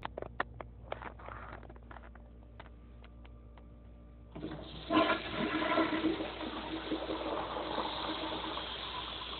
The toilet flushing as a small sound of tapping